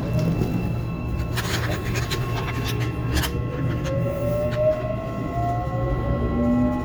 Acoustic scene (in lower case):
subway train